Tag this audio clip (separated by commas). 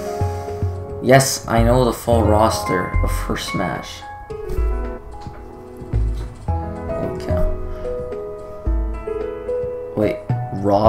Music, Speech